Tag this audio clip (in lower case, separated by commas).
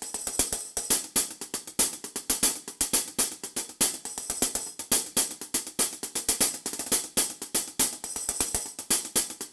music